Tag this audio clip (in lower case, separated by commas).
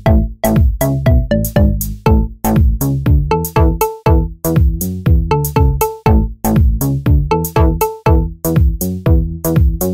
music